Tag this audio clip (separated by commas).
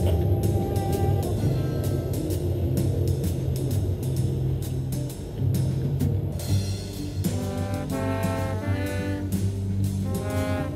Music